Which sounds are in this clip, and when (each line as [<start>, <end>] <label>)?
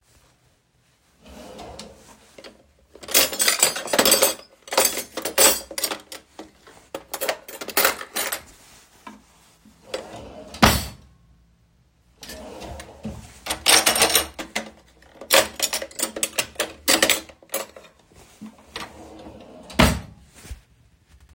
[1.20, 2.85] wardrobe or drawer
[3.02, 8.61] cutlery and dishes
[9.76, 11.12] wardrobe or drawer
[12.17, 13.43] wardrobe or drawer
[13.45, 18.01] cutlery and dishes
[18.73, 20.59] wardrobe or drawer